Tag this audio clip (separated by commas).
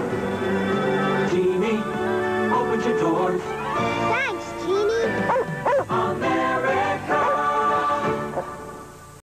Speech, Music